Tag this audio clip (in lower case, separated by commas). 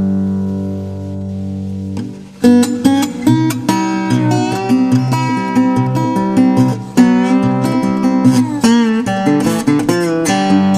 strum, musical instrument, music, plucked string instrument, acoustic guitar, guitar